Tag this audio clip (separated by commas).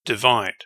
Male speech, Speech, Human voice